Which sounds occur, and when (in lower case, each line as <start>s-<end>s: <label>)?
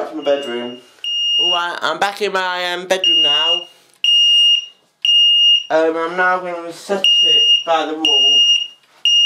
0.0s-0.8s: male speech
0.0s-9.2s: conversation
0.0s-9.2s: mechanisms
0.2s-0.8s: beep
1.0s-1.5s: beep
1.3s-3.6s: male speech
3.0s-3.6s: beep
4.0s-4.8s: beep
5.0s-5.7s: beep
5.7s-8.4s: male speech
7.0s-7.7s: beep
8.0s-8.7s: beep